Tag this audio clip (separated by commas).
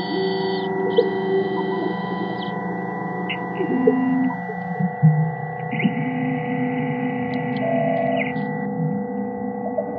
Hum, Mains hum